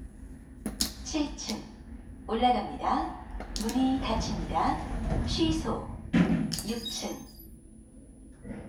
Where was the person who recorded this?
in an elevator